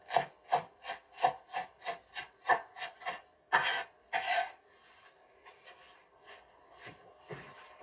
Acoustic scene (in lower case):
kitchen